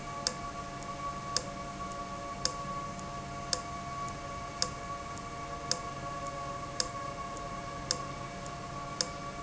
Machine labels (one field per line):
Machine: valve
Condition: abnormal